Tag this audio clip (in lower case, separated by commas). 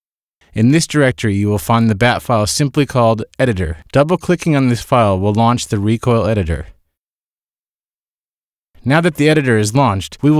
speech